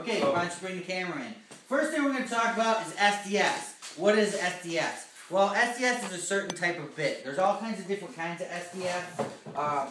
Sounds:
speech

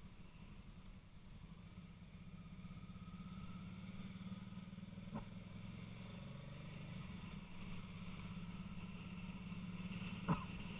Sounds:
vehicle
motorcycle

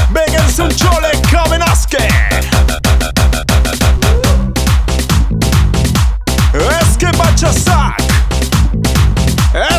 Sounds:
music

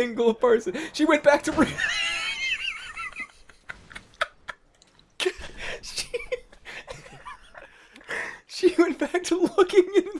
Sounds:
inside a small room
speech

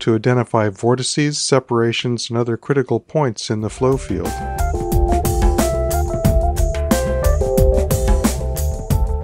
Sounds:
speech synthesizer

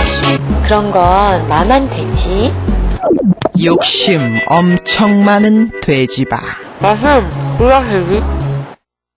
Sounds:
music
speech

